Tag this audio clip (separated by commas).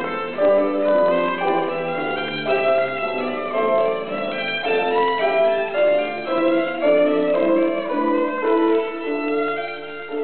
Musical instrument, Music, Violin